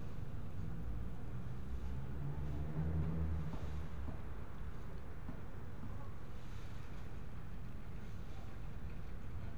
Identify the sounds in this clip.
medium-sounding engine